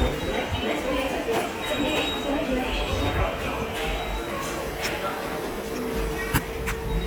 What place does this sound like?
subway station